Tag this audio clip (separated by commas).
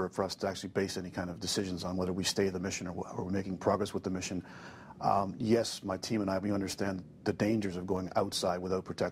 Speech